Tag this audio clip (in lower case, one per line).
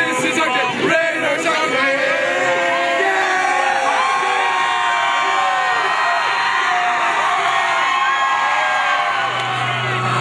crowd